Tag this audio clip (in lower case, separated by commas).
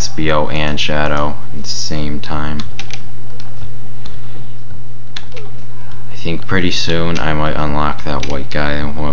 speech